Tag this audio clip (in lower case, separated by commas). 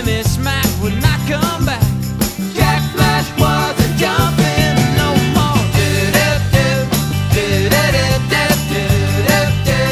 grunge, music